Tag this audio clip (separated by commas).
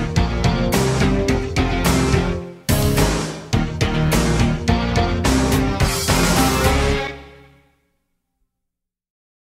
Music